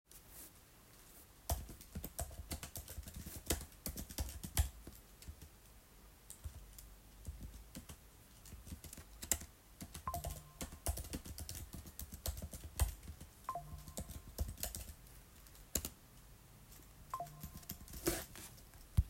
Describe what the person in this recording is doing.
I walked into the toilet area and activated the flush. I waited for the flushing sound to finish before walking back toward the door.